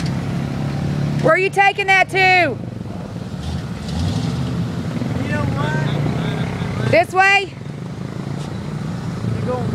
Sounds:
Speech, Vehicle

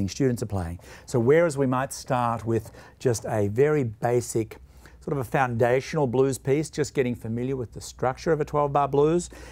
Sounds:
Speech

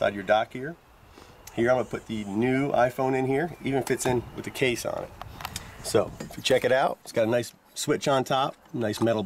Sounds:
Speech

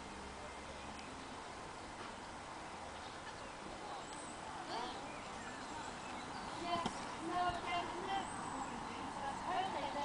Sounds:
Speech, Bird

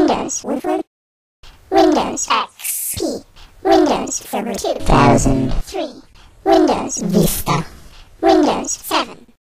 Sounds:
Speech synthesizer

